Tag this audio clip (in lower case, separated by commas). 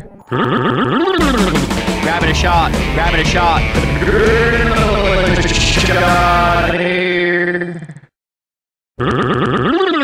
music, speech